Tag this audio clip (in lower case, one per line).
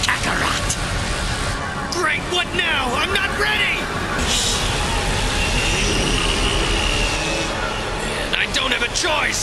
speech
music